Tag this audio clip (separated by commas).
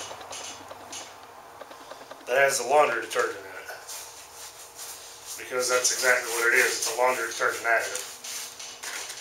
Rub